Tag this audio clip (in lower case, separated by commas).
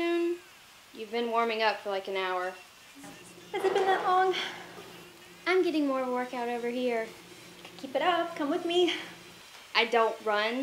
music, speech